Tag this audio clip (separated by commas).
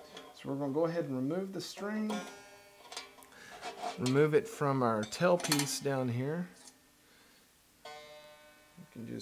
inside a small room, Plucked string instrument, Guitar, Music, Speech, Banjo, Musical instrument